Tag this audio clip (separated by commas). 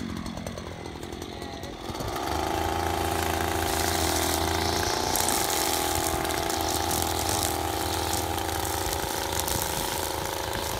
hedge trimmer running